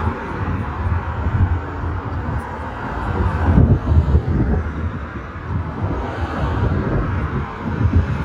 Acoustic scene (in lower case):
street